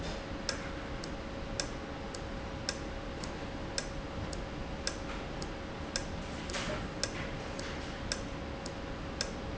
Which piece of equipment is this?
valve